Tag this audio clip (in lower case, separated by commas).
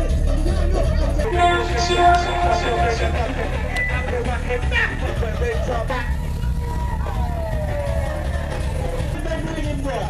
speech, music